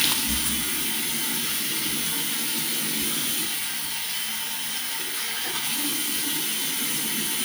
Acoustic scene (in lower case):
restroom